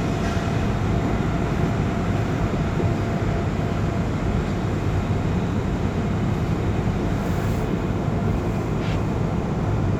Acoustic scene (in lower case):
subway train